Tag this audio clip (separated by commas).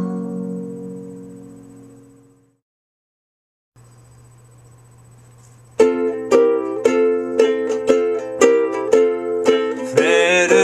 Music, Musical instrument, Acoustic guitar, Plucked string instrument, Ukulele